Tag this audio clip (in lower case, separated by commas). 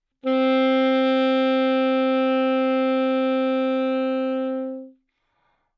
wind instrument, musical instrument, music